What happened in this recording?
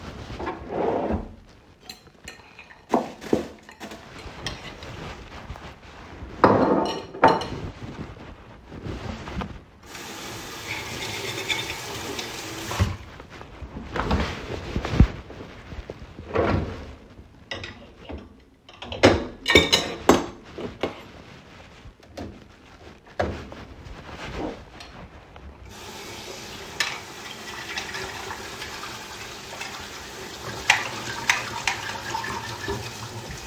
I opened the trash bin (opens like a drawe. I didn't close it in this audio), threw out the leftovers, put the plate in the kitchen sink, rubbed it, and loaded it into the dishwasher. The phone was in the pocket